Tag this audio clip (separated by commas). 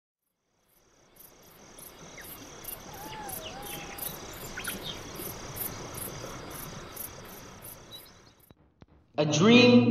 Bird, Speech